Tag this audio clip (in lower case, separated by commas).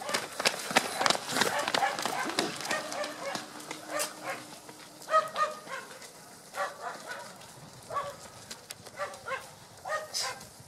run, outside, rural or natural, people running